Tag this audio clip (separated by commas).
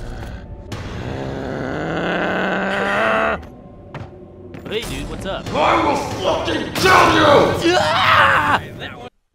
Speech